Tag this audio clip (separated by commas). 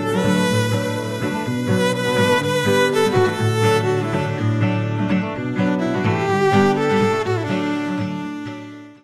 Musical instrument, Music, fiddle